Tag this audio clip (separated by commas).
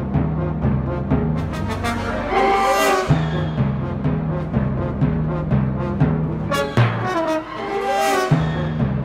playing timpani